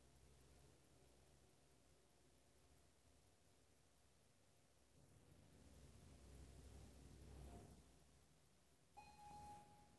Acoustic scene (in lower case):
elevator